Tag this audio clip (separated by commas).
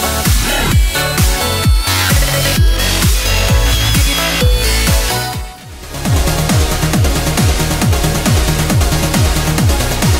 Music